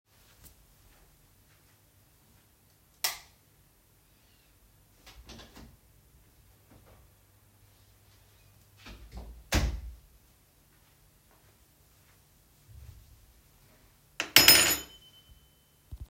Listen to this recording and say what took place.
I turned on the light, opened the door and walked through, then closed it. I put my keys down on the table.